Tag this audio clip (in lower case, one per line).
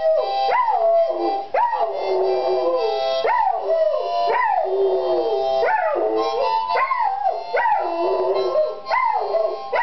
music
bow-wow